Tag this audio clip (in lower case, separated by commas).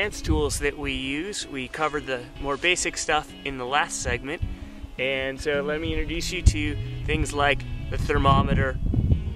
music, speech